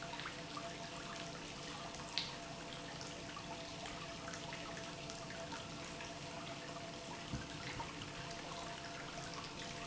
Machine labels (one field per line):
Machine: pump